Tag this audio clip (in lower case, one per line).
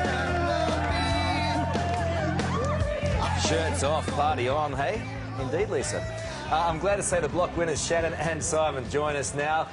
music
speech